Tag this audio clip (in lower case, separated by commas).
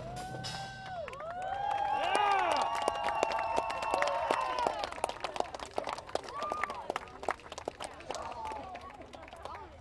speech